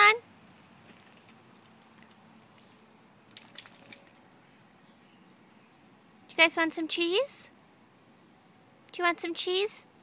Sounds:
Speech

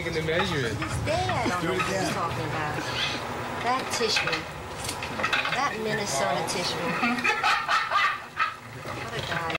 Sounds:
Speech

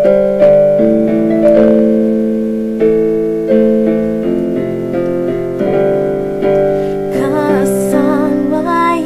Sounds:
Music, Female singing

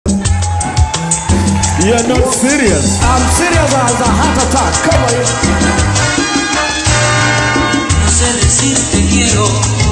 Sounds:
Speech, Music, Salsa music

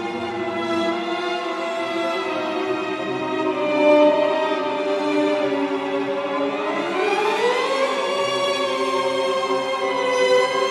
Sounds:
Music

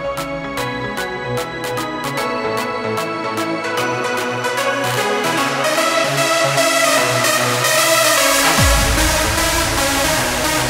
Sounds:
Disco, Music, Exciting music

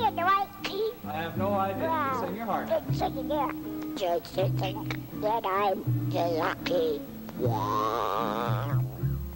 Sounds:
Music, Speech

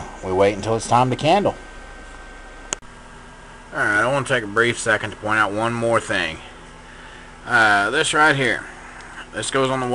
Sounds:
Speech

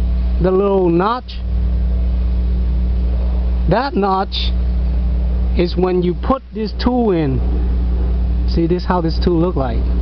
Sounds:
Speech, Engine

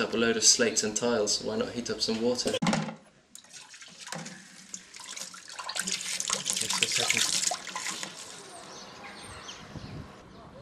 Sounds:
Sink (filling or washing), inside a small room, faucet, Speech

